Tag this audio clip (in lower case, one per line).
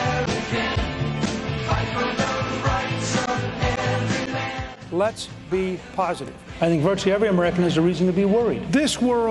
speech
music